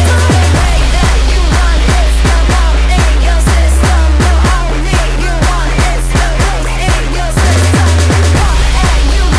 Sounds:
Music

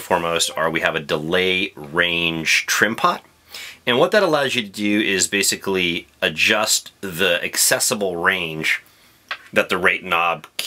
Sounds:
Speech

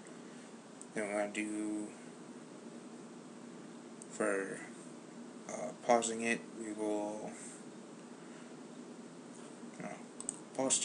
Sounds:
inside a small room, Speech

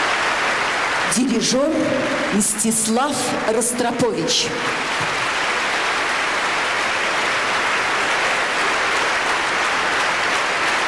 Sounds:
Speech

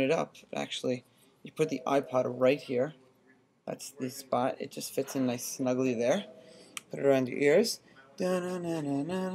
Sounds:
Speech

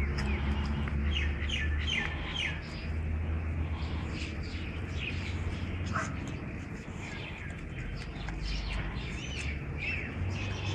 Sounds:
Bow-wow, Whimper (dog)

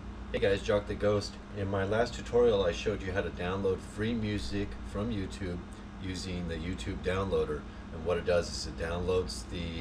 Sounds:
Speech

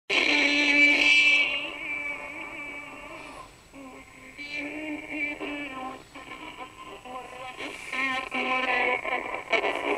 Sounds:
Synthetic singing

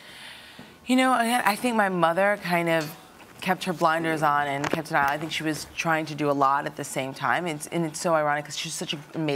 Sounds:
Female speech

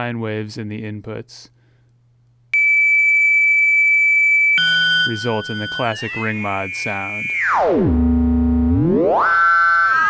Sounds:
Speech

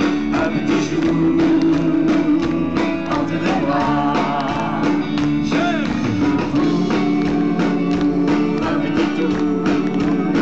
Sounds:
Music

